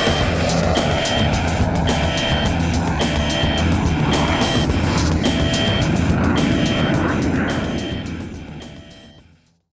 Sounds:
music, fixed-wing aircraft, vehicle

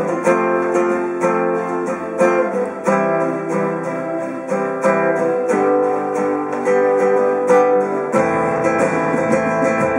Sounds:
flamenco

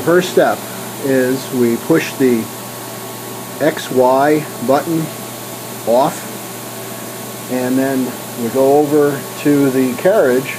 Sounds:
speech

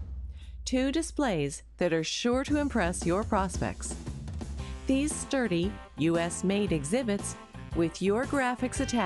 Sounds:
music, speech, narration, female speech

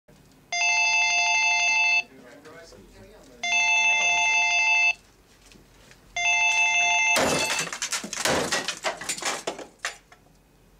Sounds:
inside a public space, speech

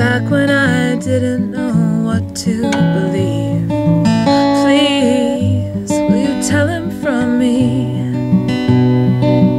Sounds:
music, female singing

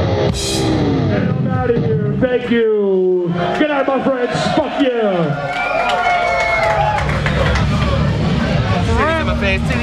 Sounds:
speech, music, drum kit, drum, musical instrument

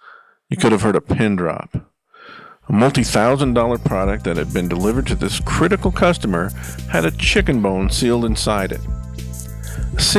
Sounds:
music, speech

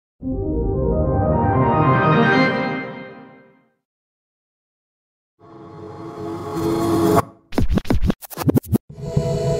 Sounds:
music

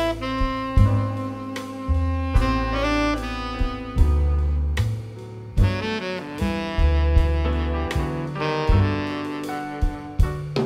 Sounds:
brass instrument, saxophone, playing saxophone

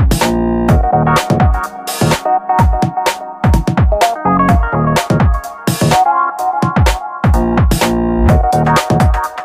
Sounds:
music, blues, rhythm and blues, dance music

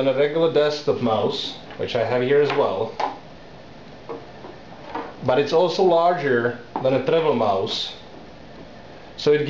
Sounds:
speech

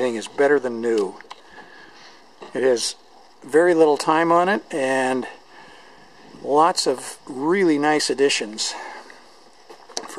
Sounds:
speech

